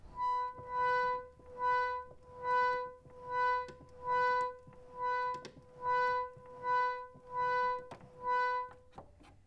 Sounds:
keyboard (musical), musical instrument, organ, music

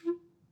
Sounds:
musical instrument, music, woodwind instrument

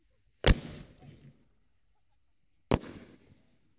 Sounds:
explosion, fireworks

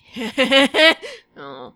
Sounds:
human voice, laughter

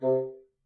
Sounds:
musical instrument, music, wind instrument

